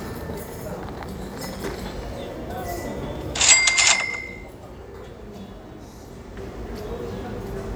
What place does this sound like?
cafe